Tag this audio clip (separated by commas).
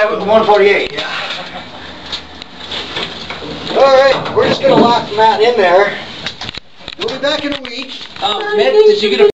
Speech, inside a small room